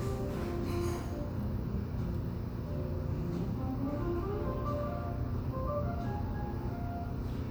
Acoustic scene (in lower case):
cafe